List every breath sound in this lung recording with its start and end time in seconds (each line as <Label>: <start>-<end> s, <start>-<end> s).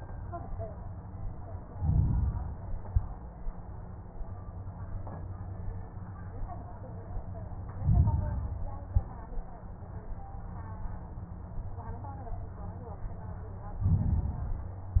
Inhalation: 1.65-2.68 s, 7.77-8.74 s, 13.79-15.00 s
Exhalation: 2.68-3.29 s, 8.74-9.35 s